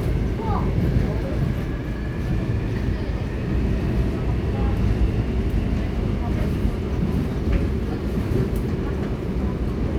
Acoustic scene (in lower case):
subway train